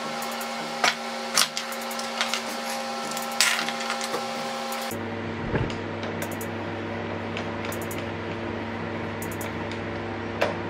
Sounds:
lathe spinning

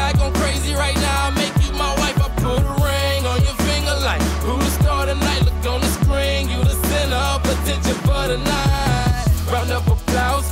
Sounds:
music

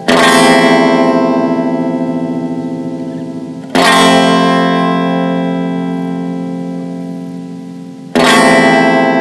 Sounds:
reverberation
music

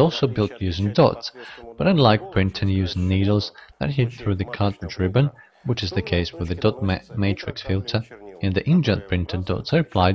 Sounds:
speech

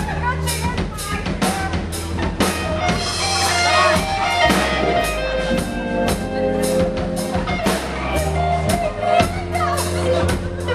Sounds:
music
speech

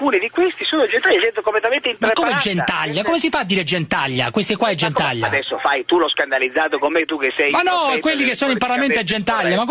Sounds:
radio
speech

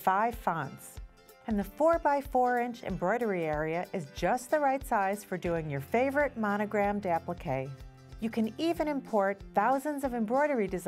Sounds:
speech
music

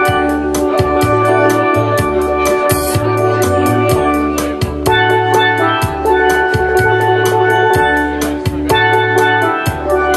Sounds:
musical instrument
steelpan
speech
music

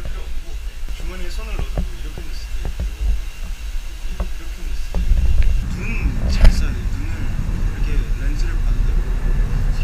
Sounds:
speech

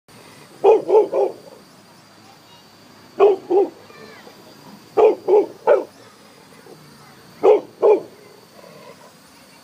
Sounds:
dog
speech
domestic animals
bark
dog barking
animal

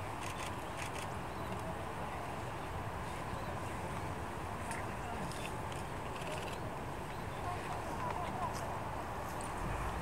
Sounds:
black capped chickadee calling

